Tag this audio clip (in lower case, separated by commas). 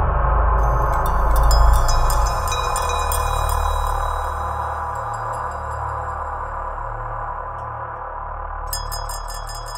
music, glass